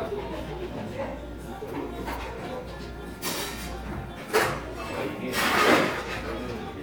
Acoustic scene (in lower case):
cafe